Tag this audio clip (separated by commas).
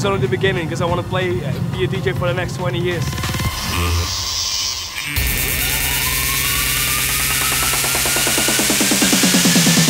Music, outside, urban or man-made, Speech